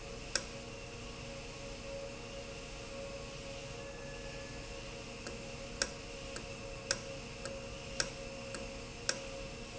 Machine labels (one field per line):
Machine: valve